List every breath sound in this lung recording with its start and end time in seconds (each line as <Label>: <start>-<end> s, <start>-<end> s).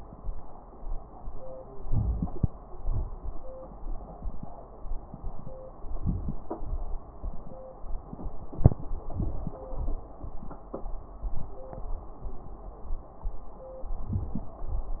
Inhalation: 1.85-2.48 s, 5.95-6.40 s, 13.98-14.60 s
Exhalation: 2.69-3.17 s, 6.61-7.06 s, 14.69-15.00 s
Crackles: 1.85-2.48 s, 13.98-14.60 s